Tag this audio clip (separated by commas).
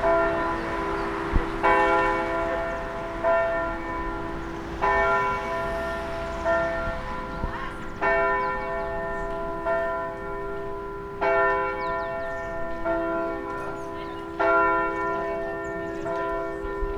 Church bell, Bell